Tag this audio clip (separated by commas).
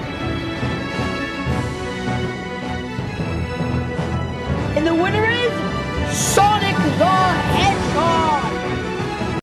Music, Speech